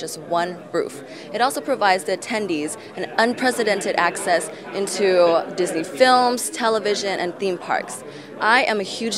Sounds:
Speech

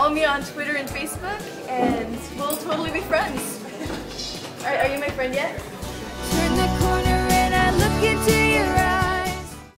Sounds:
Speech, Music

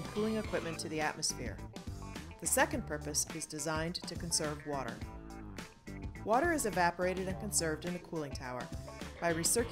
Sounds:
Music, Speech

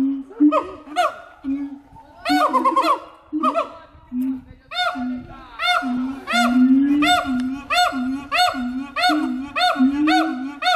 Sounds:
gibbon howling

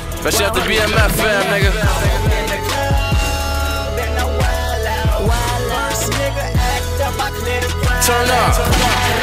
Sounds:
Music

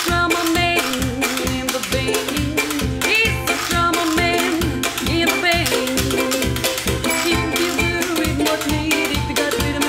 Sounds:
playing washboard

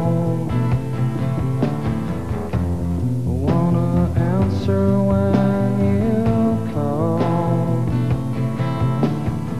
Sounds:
Music

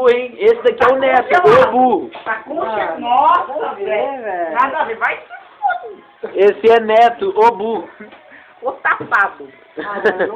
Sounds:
Speech

